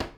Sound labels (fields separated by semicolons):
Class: cupboard; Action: closing; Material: wooden